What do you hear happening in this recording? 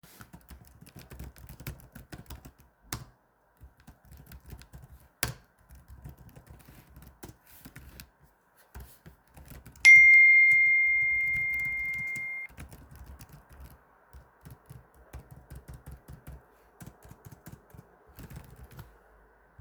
I was typing on my keyboard, then I’ve got a phone notification, and kept typing on the keyboard.